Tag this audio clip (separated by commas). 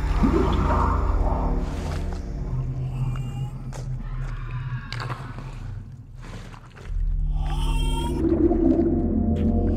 Music, Ambient music